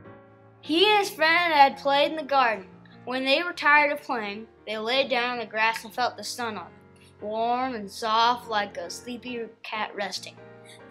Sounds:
music, speech

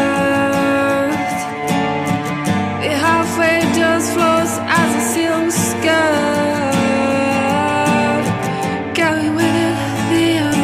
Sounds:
music, soul music

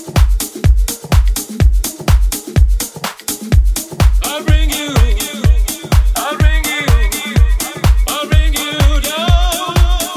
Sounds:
music

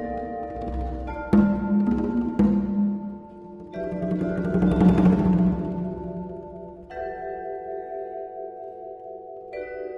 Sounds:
playing vibraphone, vibraphone, music, musical instrument, percussion

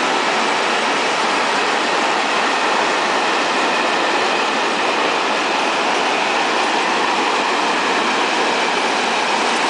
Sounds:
train wagon, train, vehicle

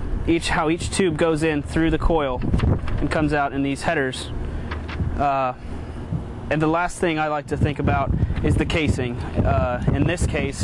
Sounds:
speech

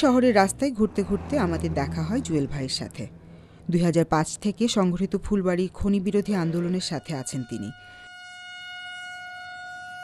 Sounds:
speech, honking

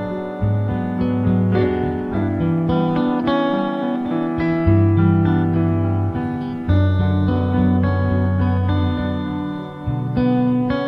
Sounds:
tender music, music

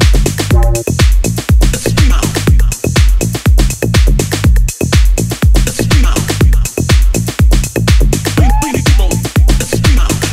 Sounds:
music, dance music

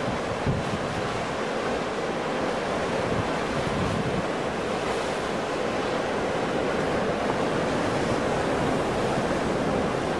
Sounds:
sea waves

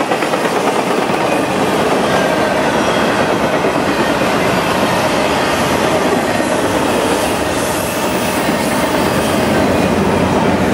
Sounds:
train, clickety-clack, railroad car, rail transport

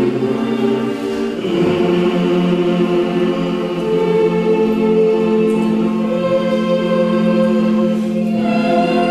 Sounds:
music, vocal music, choir

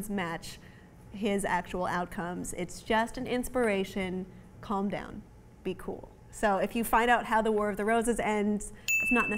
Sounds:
inside a small room, speech

